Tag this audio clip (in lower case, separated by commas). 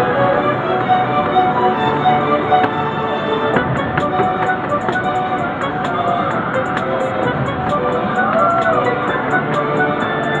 music